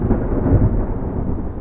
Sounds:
Thunder, Thunderstorm

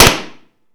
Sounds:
Tools

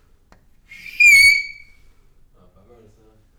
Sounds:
Screech

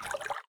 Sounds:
Liquid, Splash

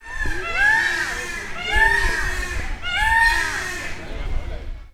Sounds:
Animal, Bird, Wild animals

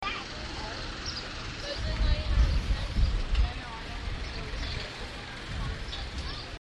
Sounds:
Wind

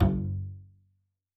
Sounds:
Bowed string instrument, Musical instrument, Music

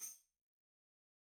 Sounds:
Tambourine, Musical instrument, Percussion, Music

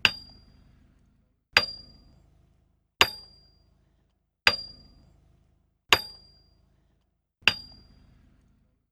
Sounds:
Tools, Hammer

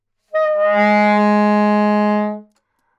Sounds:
Wind instrument, Music, Musical instrument

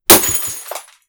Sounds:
Glass, Shatter

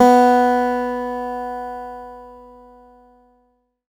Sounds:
Acoustic guitar, Guitar, Plucked string instrument, Musical instrument, Music

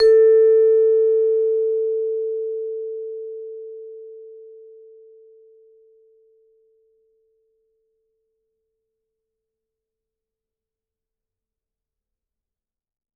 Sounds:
Musical instrument, Percussion, Music, Mallet percussion

